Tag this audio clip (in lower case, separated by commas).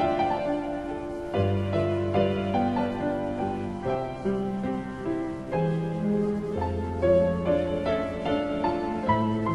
music